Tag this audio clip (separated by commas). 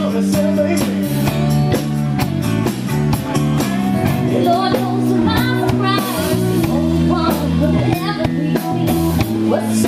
Music, Sampler